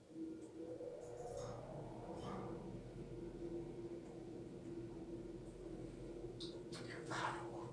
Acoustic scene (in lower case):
elevator